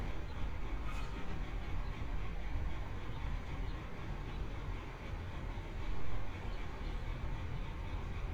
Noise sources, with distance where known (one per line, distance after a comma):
large-sounding engine, near